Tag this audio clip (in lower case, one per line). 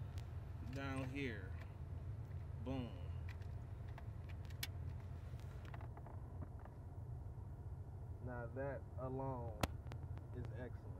speech